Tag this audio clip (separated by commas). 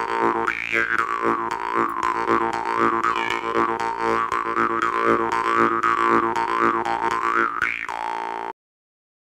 Music